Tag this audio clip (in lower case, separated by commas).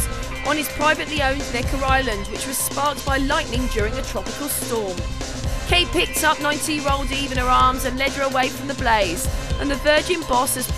speech, music